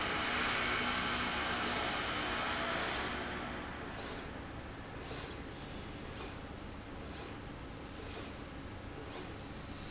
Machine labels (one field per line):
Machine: slide rail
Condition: normal